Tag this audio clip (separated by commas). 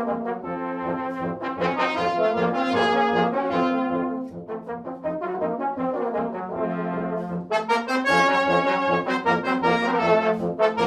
Music, playing french horn, French horn